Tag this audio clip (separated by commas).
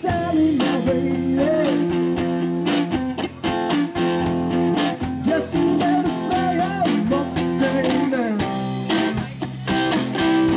Strum, Musical instrument, Electric guitar, Acoustic guitar, Music, Guitar